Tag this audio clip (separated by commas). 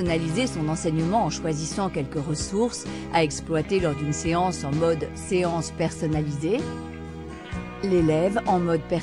Music, Speech